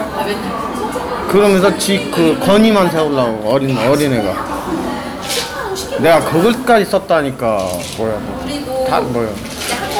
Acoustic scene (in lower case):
cafe